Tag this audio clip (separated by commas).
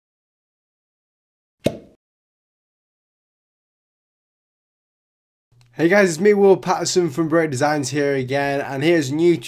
Speech, Plop